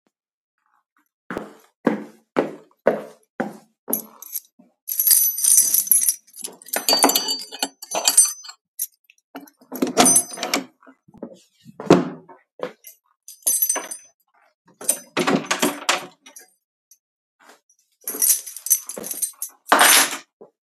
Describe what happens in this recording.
opned door using keys. walked into room. left the keys in the table.